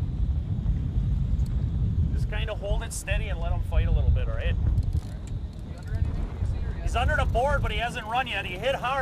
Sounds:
speech

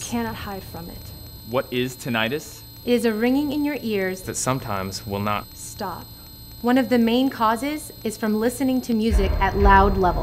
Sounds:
speech

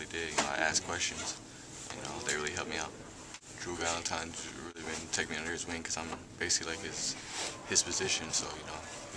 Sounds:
inside a small room
speech

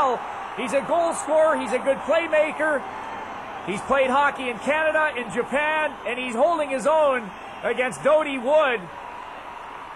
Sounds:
speech

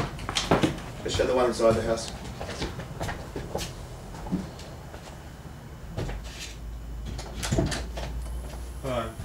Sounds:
speech

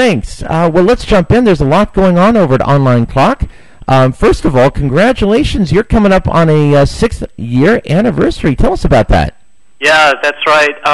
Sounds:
speech

